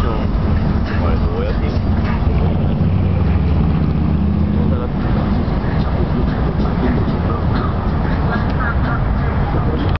A motor vehicle sound and a man and a girl speaks